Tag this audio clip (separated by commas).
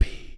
Whispering, Human voice